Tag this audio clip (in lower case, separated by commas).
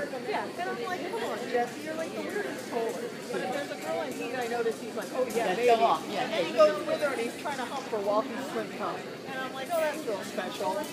speech